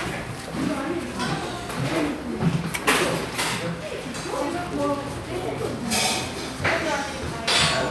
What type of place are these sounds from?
crowded indoor space